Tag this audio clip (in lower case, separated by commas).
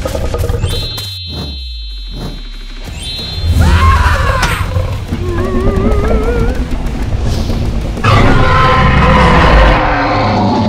dinosaurs bellowing